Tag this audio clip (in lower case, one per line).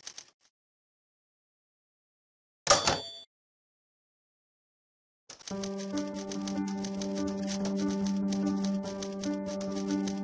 typing on typewriter